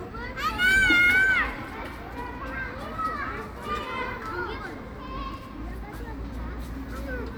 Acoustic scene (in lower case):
park